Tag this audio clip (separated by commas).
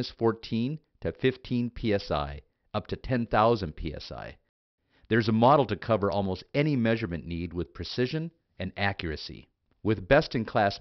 Speech